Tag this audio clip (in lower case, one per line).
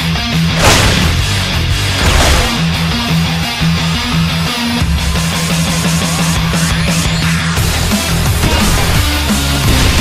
music